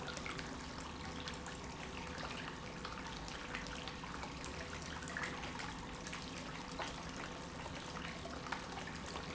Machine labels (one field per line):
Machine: pump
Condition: normal